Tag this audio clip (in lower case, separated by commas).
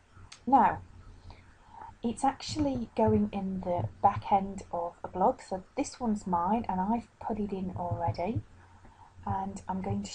speech